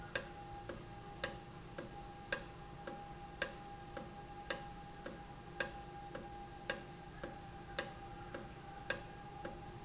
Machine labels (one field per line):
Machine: valve